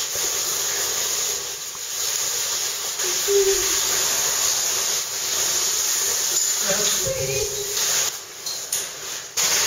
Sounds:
speech

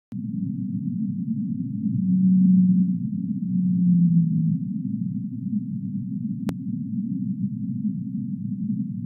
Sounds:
whale vocalization

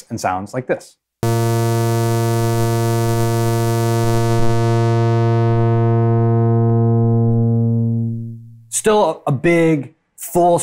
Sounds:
playing synthesizer

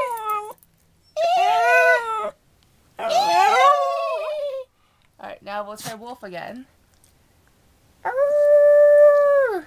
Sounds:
speech
animal

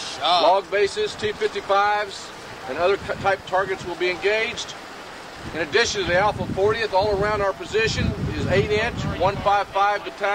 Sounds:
outside, urban or man-made
speech

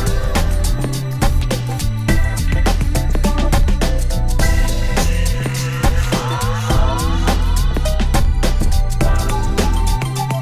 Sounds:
music

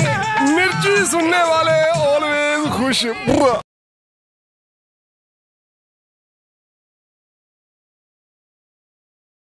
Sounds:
speech
music

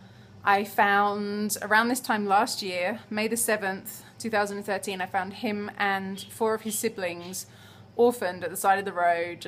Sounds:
speech

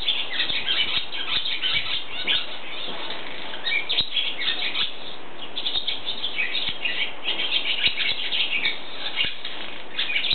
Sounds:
barn swallow calling

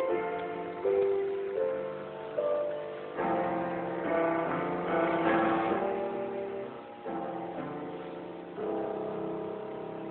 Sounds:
tender music
music

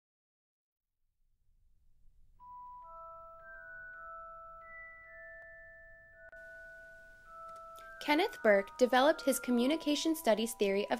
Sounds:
speech
music

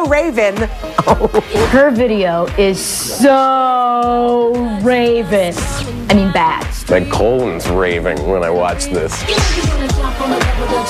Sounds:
music
speech

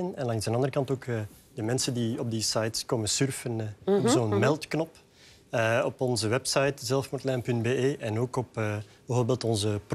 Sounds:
speech

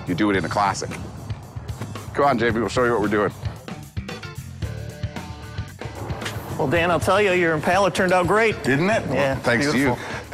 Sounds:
speech
music

